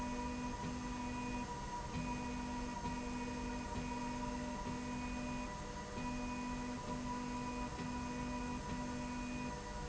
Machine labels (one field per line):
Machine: slide rail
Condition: normal